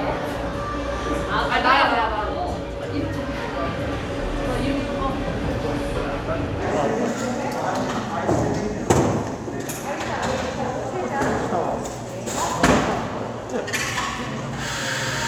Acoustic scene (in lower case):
cafe